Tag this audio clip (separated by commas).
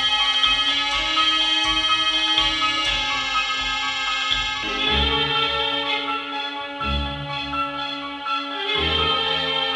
inside a large room or hall, Music